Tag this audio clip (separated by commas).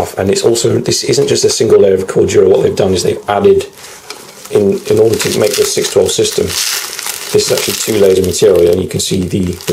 Speech